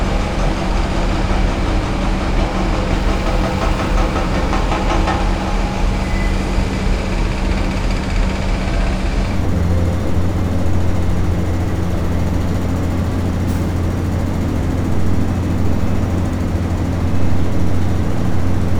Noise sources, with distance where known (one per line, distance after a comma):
hoe ram